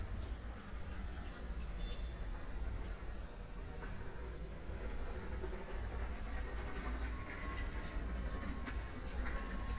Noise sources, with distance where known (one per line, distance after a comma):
background noise